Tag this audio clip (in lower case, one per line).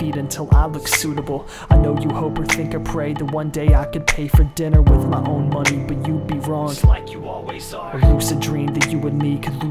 music